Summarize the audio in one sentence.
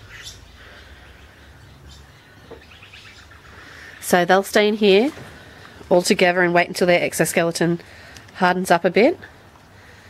A female talks while birds call in the distance